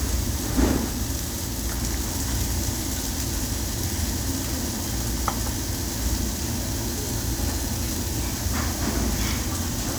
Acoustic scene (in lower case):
restaurant